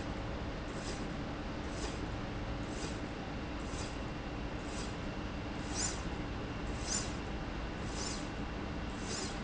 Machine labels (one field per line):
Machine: slide rail